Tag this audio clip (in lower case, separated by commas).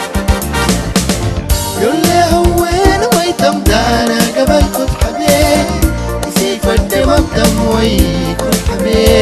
music of africa, music